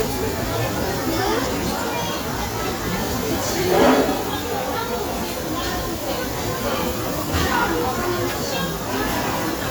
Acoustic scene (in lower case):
restaurant